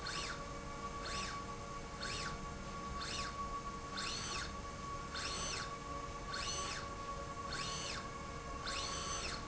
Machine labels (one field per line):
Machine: slide rail